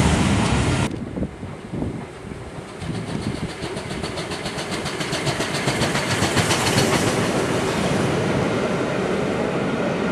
A train approaches and hisses by